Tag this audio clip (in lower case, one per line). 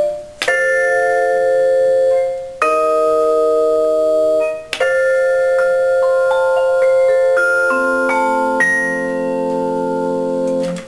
music
musical instrument
marimba
percussion
vibraphone
playing marimba